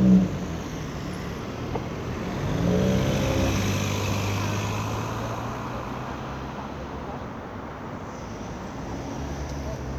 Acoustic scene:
street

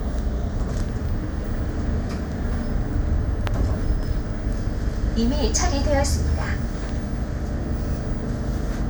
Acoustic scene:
bus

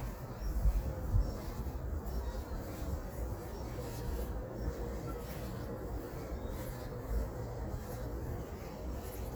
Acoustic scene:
residential area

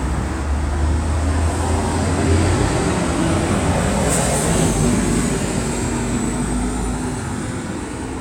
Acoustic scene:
street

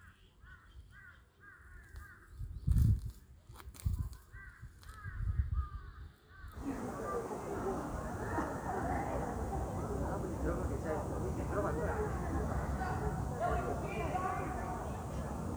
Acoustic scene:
park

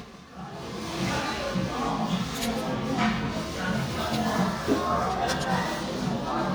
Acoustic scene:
crowded indoor space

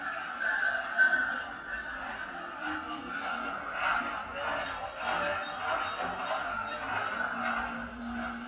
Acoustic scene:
cafe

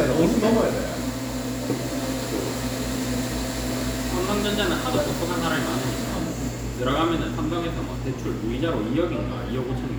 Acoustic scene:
cafe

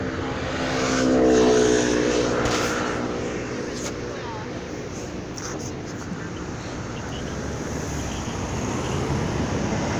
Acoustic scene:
street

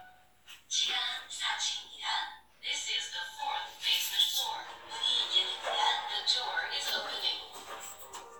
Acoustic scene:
elevator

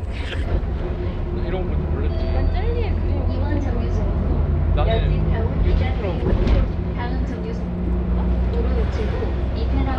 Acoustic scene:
bus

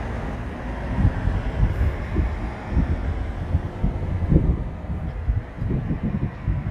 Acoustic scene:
street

